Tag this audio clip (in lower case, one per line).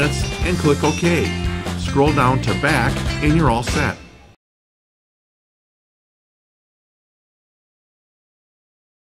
music
speech